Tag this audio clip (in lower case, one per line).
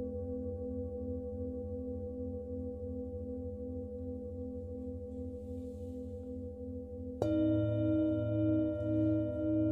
singing bowl